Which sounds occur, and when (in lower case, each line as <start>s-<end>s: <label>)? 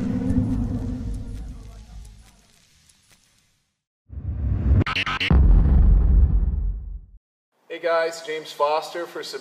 0.0s-2.2s: sound effect
0.0s-3.8s: mechanisms
0.3s-0.7s: generic impact sounds
1.0s-2.6s: male singing
1.1s-1.6s: generic impact sounds
2.0s-2.4s: generic impact sounds
2.9s-3.2s: generic impact sounds
4.1s-7.2s: sound effect
7.5s-9.4s: mechanisms
7.7s-9.4s: male speech